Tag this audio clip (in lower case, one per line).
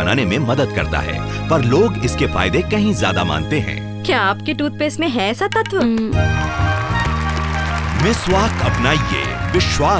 music
speech